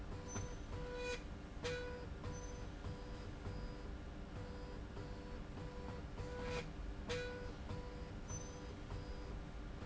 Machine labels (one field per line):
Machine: slide rail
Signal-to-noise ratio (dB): 6 dB